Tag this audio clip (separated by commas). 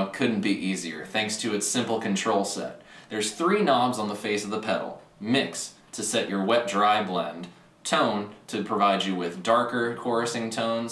Speech